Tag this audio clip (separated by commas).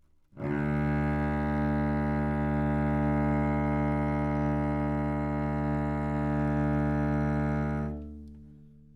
Bowed string instrument, Musical instrument, Music